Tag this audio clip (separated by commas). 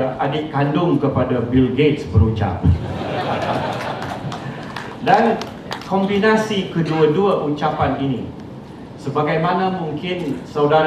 Narration, Speech, man speaking